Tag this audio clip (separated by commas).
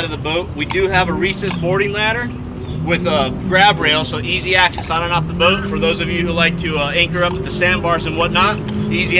Boat, speedboat, Speech